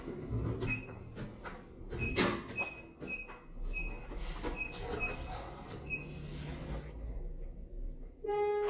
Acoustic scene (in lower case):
elevator